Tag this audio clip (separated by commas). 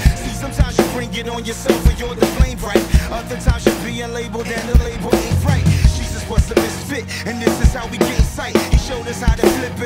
Music, Dance music